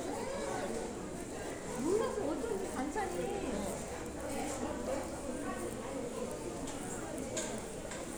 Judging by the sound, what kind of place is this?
crowded indoor space